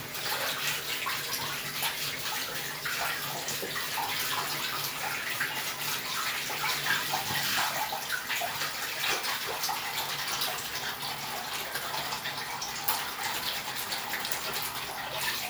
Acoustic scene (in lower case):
restroom